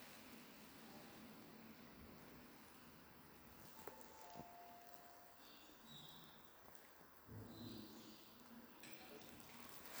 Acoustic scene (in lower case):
elevator